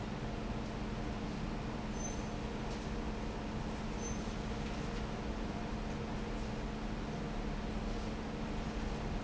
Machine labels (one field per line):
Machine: fan